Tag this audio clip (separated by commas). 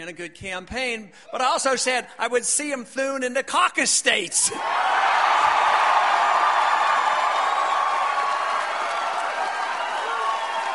man speaking, Speech